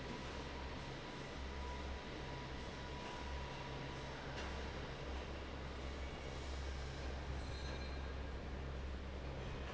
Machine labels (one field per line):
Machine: fan